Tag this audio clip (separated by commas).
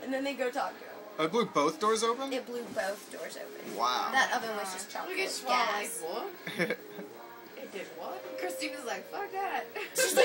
Speech, Music